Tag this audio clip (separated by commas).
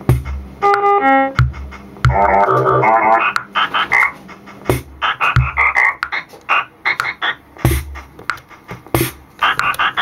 Techno, Music, Electronic music, Drum machine